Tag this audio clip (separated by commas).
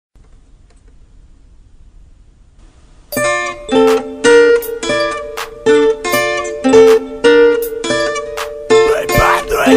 Ukulele, Music